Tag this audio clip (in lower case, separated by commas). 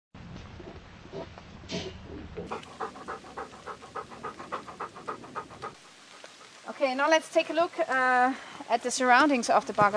pant, animal